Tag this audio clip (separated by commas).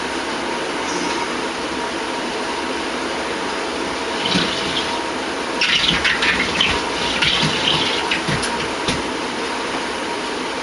inside a small room